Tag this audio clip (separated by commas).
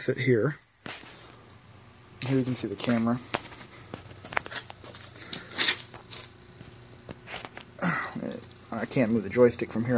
Speech